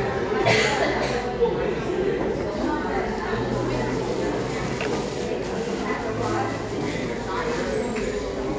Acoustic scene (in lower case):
cafe